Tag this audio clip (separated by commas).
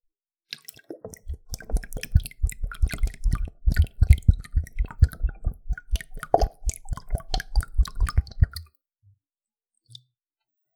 Liquid, Fill (with liquid)